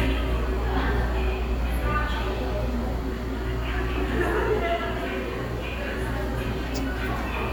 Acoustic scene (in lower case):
subway station